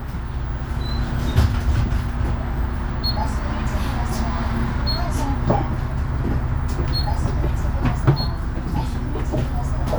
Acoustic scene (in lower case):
bus